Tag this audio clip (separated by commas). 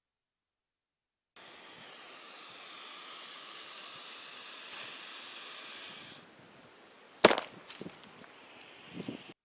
outside, rural or natural, Snake, Animal